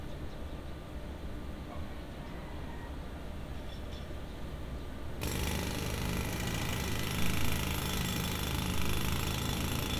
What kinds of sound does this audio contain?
jackhammer